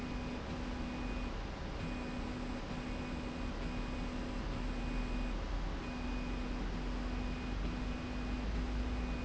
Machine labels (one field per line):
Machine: slide rail